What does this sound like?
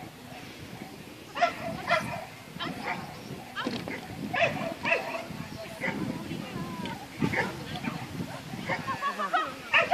Dog barking repeatedly